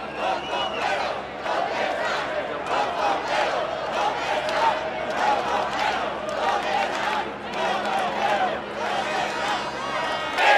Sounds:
people cheering

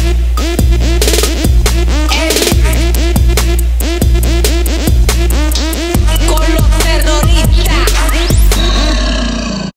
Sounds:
music

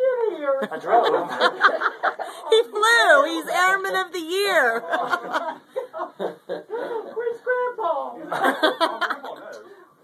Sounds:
speech

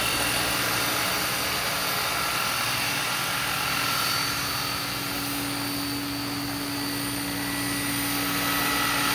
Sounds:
light engine (high frequency)
helicopter

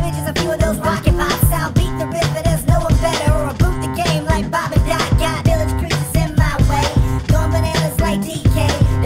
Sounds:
music

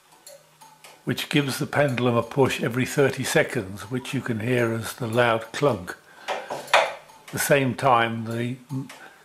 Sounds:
speech

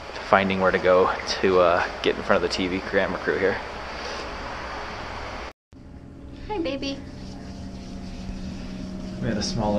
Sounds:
speech

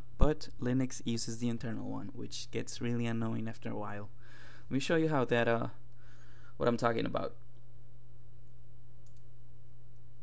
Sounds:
speech

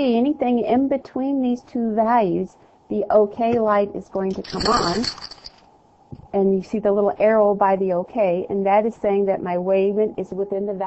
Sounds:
speech

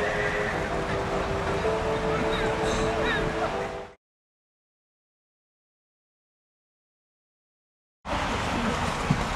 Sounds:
speech
music

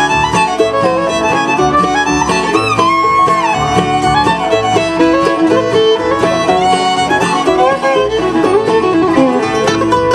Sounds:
music

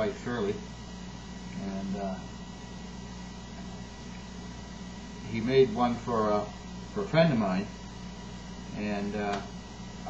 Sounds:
speech

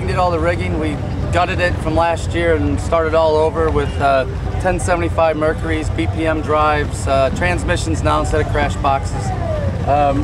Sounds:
speech

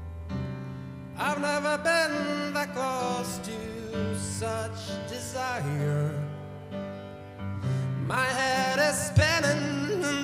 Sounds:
music

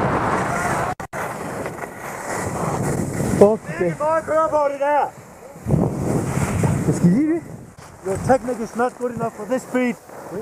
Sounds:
skiing

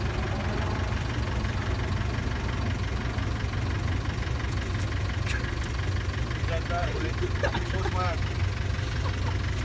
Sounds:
ice cream truck

